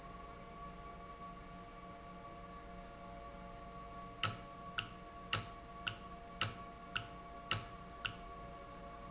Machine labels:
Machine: valve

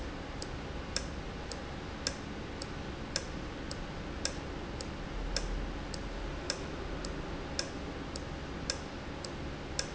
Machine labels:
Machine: valve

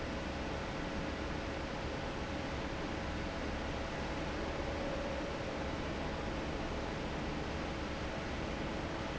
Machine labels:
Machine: fan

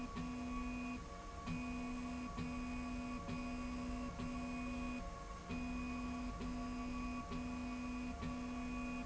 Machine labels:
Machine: slide rail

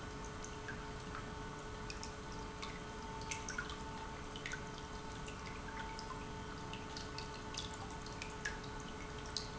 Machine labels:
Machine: pump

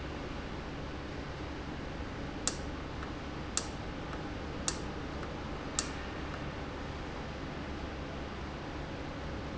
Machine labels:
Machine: valve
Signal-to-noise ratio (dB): -6 dB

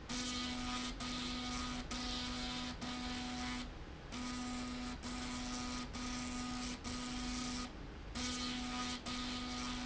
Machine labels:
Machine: slide rail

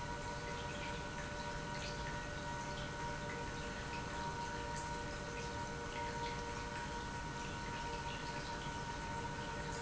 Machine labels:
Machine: pump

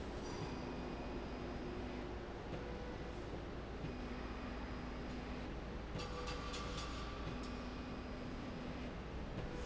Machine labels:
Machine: slide rail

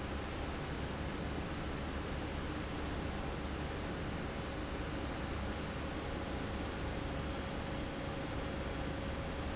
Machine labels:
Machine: fan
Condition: abnormal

